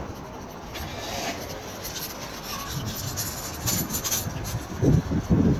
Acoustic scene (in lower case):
street